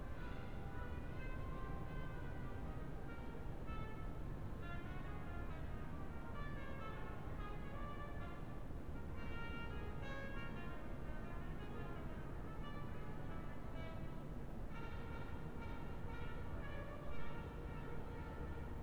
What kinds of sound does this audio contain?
music from a fixed source